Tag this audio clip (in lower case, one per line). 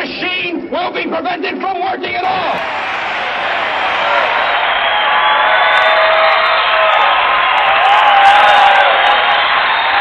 man speaking
narration
speech